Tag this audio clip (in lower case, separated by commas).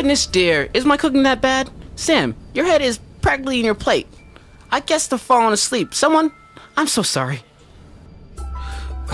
speech, music, radio